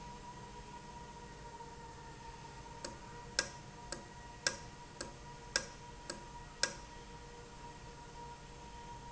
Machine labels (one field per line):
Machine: valve